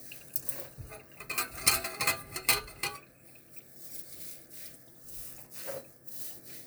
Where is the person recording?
in a kitchen